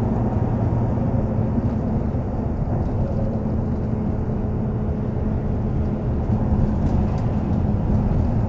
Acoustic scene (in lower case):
bus